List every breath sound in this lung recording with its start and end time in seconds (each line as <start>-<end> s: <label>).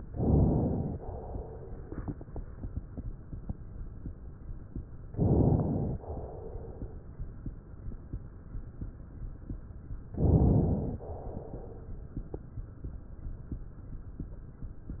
0.06-0.99 s: inhalation
0.99-1.90 s: exhalation
5.09-6.00 s: inhalation
6.00-7.00 s: exhalation
10.15-11.01 s: inhalation
11.01-11.95 s: exhalation